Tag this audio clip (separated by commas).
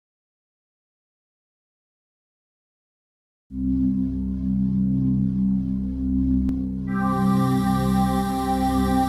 Music